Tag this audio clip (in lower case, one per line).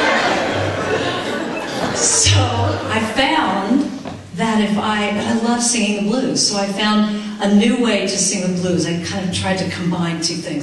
speech